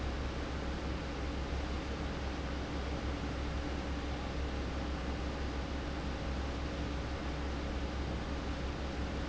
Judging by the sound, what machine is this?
fan